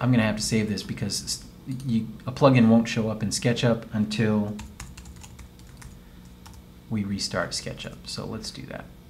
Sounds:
typing, speech

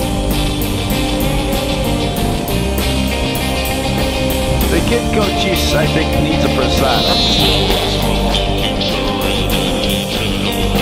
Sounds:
speech, music

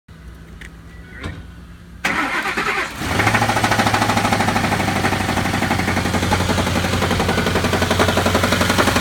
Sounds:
car engine knocking

